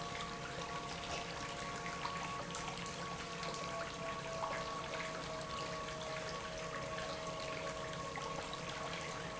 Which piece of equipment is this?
pump